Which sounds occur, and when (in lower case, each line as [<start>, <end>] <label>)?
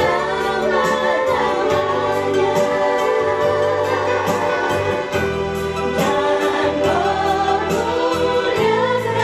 [0.00, 5.32] choir
[0.00, 9.23] music
[5.94, 9.23] choir